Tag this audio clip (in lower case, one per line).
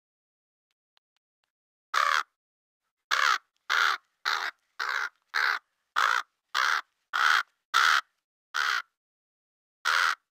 crow cawing